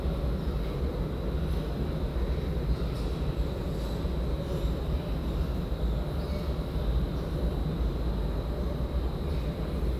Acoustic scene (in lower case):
subway station